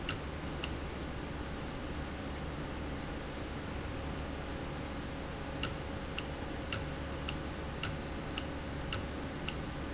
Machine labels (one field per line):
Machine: valve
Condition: normal